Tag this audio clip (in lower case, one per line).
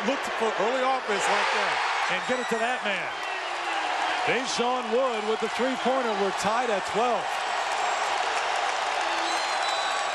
speech